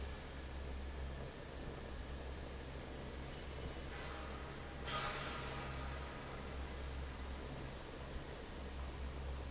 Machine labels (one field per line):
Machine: fan